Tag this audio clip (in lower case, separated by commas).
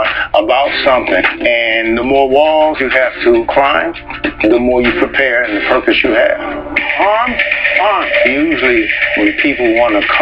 speech, music